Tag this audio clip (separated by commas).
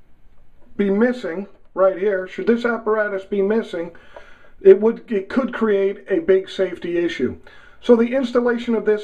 Speech